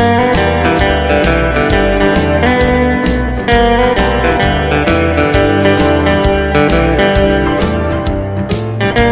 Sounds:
Music, Guitar, Background music

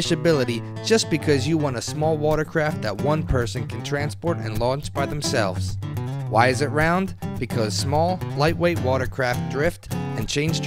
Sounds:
Speech, Music

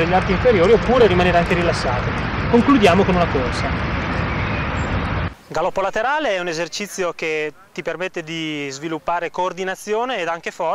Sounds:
outside, rural or natural, Speech, man speaking

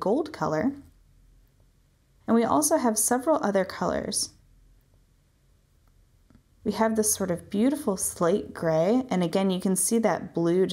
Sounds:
Speech

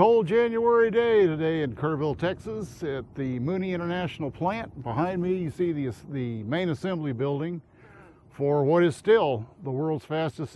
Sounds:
Speech

